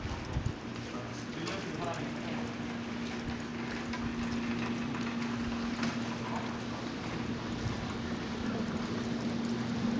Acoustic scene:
residential area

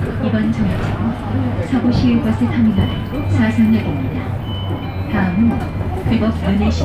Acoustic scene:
bus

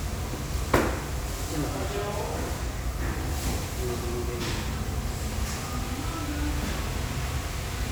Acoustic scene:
restaurant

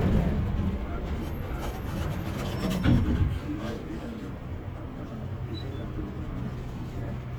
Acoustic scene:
bus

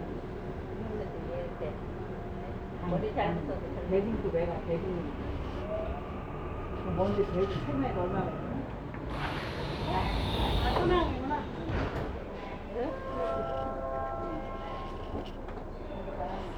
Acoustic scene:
subway train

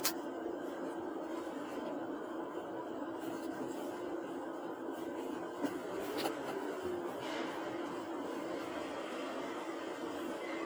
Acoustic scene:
car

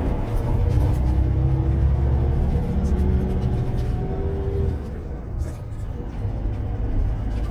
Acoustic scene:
bus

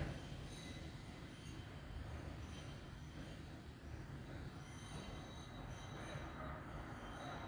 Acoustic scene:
street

